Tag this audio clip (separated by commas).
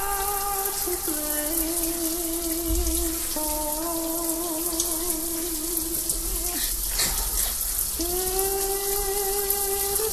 faucet, Music